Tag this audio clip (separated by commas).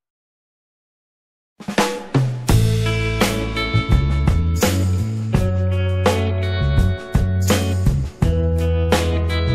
Music